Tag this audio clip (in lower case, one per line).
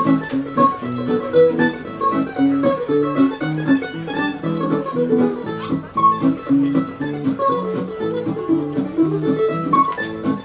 music
musical instrument
pizzicato